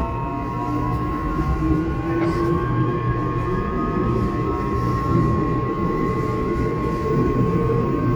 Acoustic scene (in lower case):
subway train